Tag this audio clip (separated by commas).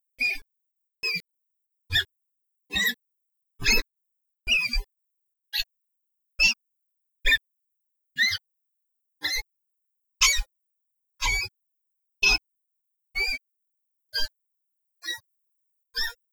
Wild animals, Animal